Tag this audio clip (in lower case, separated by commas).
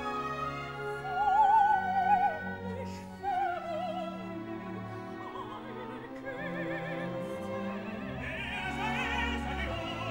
opera, music